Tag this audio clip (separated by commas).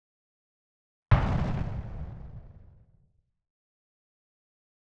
Explosion